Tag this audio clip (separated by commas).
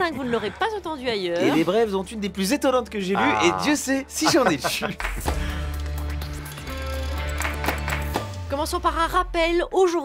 Speech, Music